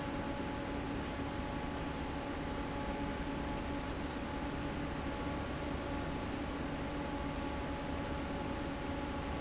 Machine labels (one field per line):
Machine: fan